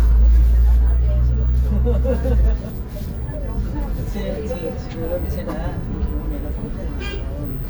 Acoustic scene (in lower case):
bus